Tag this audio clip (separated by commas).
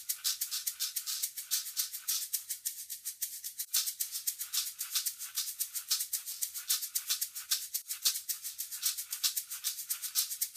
Music, Percussion